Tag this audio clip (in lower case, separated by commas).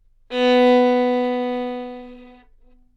music, musical instrument, bowed string instrument